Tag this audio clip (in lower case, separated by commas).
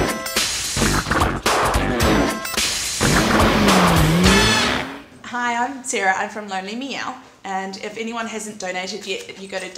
speech, music